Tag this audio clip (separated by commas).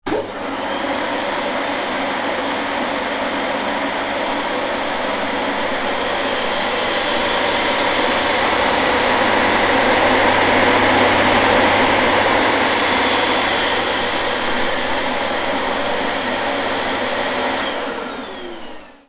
Domestic sounds